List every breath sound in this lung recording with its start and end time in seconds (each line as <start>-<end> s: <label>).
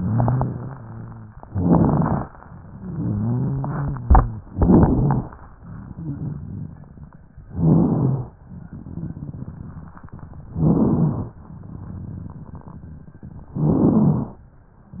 0.00-0.61 s: rhonchi
0.00-0.70 s: inhalation
0.65-1.35 s: rhonchi
1.50-2.22 s: inhalation
1.50-2.22 s: crackles
2.58-4.42 s: rhonchi
4.51-5.24 s: inhalation
4.51-5.24 s: crackles
5.58-7.27 s: crackles
7.51-8.35 s: inhalation
7.51-8.35 s: crackles
8.50-10.47 s: crackles
10.53-11.37 s: inhalation
10.53-11.37 s: crackles
11.42-13.51 s: crackles
13.56-14.40 s: inhalation
13.56-14.40 s: crackles